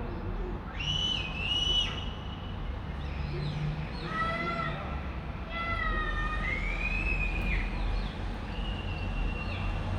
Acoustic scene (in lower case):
street